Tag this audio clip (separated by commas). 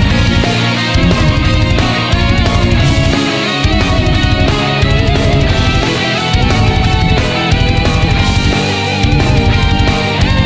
Music